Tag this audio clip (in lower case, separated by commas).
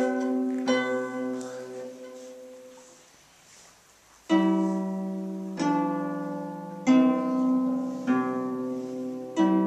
music, musical instrument, plucked string instrument